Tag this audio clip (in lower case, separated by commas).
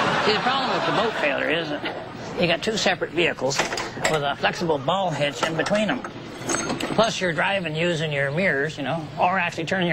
speech